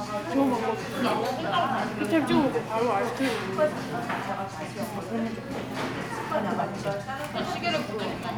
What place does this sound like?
crowded indoor space